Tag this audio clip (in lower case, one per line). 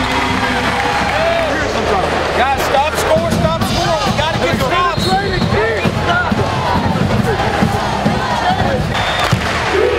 music
speech